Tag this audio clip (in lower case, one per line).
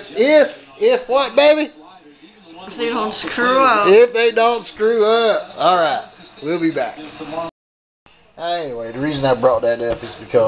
speech